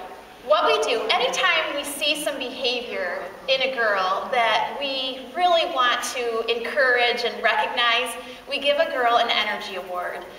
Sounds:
speech

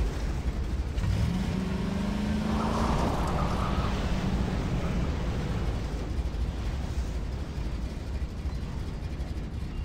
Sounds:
vehicle

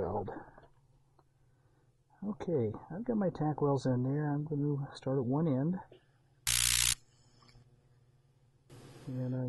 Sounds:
speech

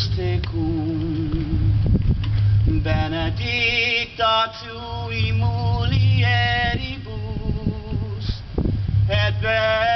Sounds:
male singing

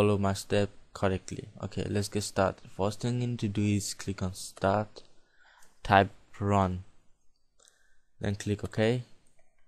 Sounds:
speech

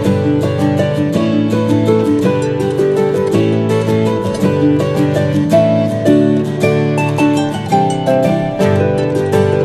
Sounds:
music

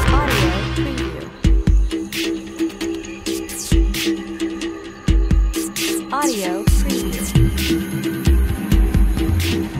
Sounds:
speech
scary music
music

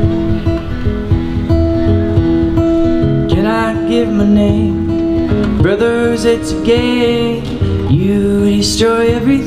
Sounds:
music

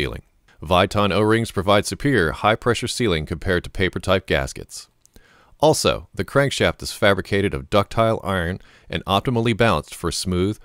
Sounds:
speech

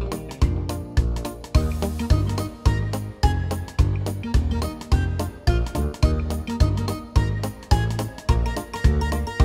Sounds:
music

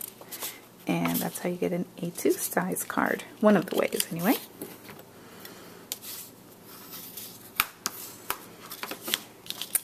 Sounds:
speech

